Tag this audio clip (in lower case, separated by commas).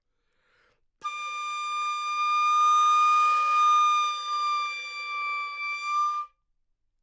musical instrument, music, woodwind instrument